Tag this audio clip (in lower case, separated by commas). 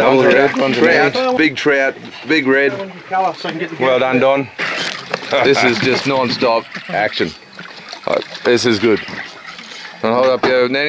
speech